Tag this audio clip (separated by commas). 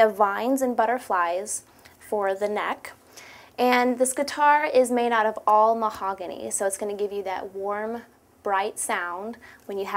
Speech